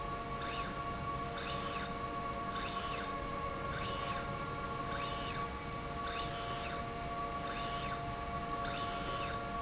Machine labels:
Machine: slide rail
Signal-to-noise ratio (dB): -6 dB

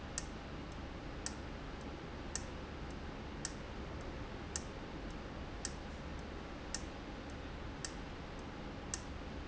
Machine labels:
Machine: valve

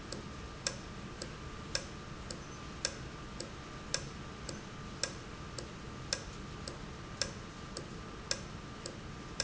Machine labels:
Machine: valve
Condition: normal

